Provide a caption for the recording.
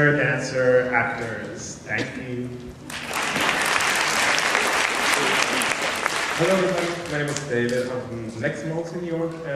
A man speaks followed by applause